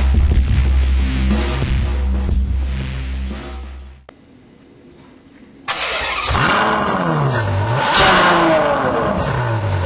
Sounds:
music
scrape

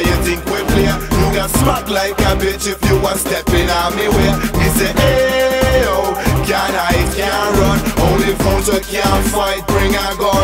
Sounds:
music

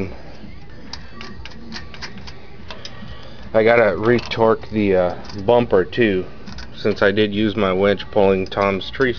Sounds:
speech

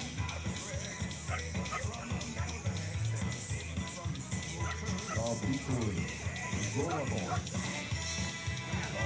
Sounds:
domestic animals
bow-wow
music
animal
dog
speech

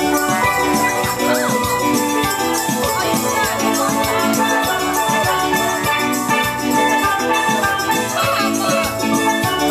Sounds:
steelpan
music
speech

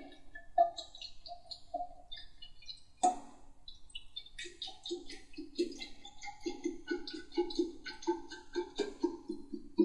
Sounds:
gurgling

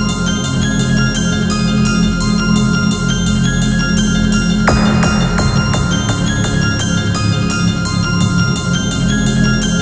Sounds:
music

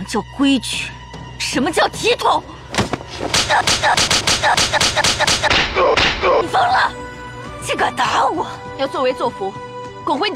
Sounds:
people slapping

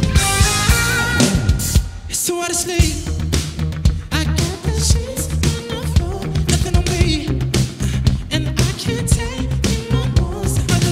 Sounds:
musical instrument
electric guitar
plucked string instrument
music
strum
guitar

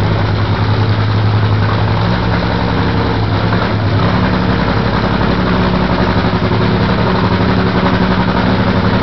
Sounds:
motor vehicle (road)

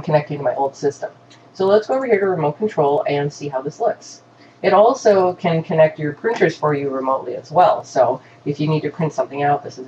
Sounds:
speech

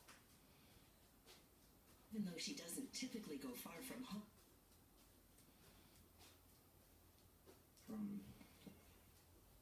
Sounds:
television
speech

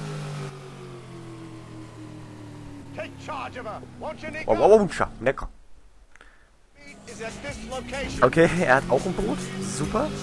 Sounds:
speech

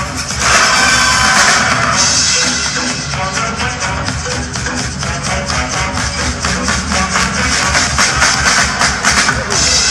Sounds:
music

